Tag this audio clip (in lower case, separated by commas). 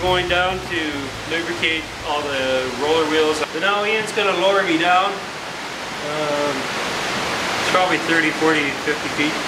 speech